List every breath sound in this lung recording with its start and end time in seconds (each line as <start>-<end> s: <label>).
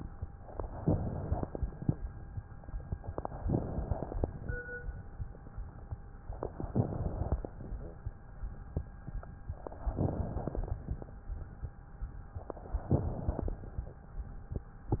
0.79-1.93 s: inhalation
0.81-1.95 s: crackles
3.40-4.55 s: inhalation
3.42-4.43 s: crackles
6.67-7.46 s: crackles
6.69-7.48 s: inhalation
9.94-10.72 s: inhalation
9.95-10.74 s: crackles
12.88-13.67 s: inhalation
12.88-13.67 s: crackles